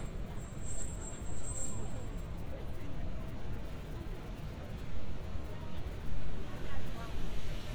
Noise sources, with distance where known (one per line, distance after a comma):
person or small group talking, near